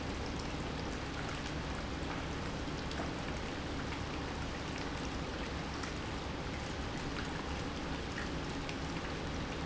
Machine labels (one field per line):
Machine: pump